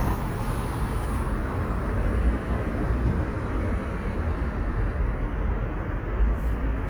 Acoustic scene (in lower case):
residential area